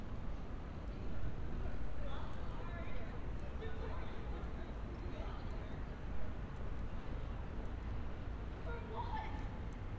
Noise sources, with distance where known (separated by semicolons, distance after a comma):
person or small group shouting